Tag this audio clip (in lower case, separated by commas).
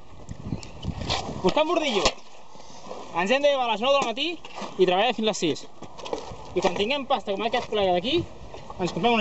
speech